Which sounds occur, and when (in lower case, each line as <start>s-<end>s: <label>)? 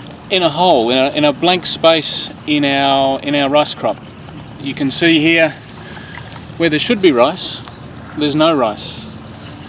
0.0s-9.6s: bird
0.0s-9.6s: background noise
0.3s-2.3s: man speaking
2.4s-3.9s: man speaking
4.7s-5.6s: man speaking
5.8s-6.6s: water
6.6s-7.7s: man speaking
8.2s-9.3s: man speaking